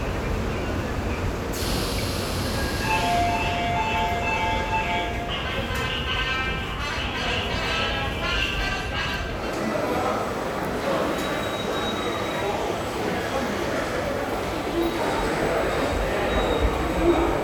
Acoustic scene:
subway station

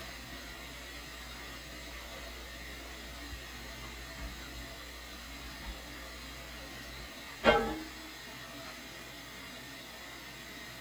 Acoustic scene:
kitchen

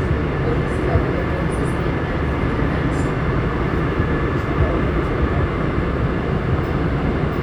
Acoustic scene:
subway train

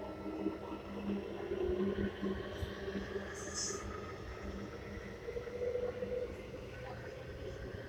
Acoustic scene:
subway train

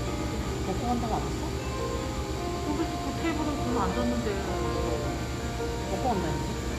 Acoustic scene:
cafe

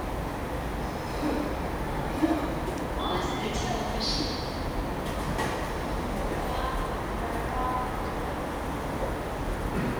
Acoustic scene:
subway station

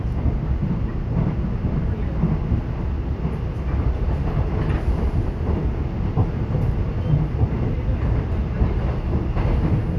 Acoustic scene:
subway train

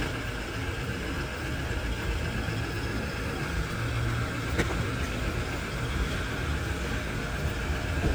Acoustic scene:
residential area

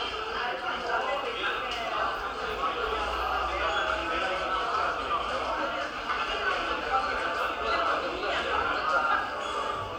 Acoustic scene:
cafe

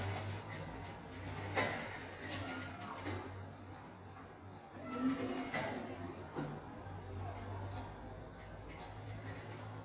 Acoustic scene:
elevator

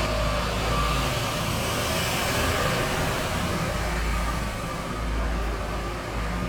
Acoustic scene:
street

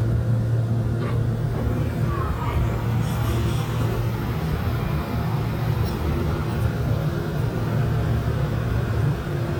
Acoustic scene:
subway train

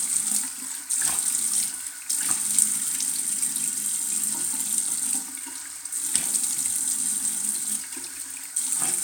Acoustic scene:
restroom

